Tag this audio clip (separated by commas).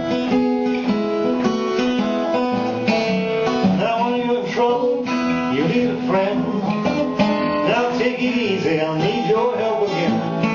Plucked string instrument, Music, Guitar, Musical instrument, Acoustic guitar, Strum